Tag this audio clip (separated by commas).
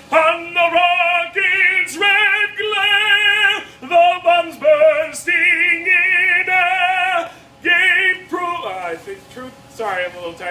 Male singing